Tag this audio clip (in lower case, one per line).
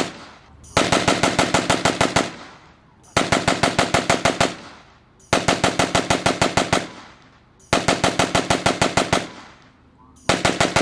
machine gun shooting